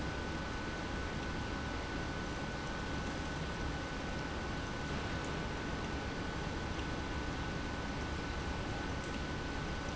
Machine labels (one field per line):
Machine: pump